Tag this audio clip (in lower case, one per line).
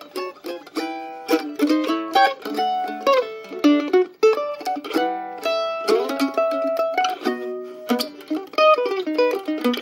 playing mandolin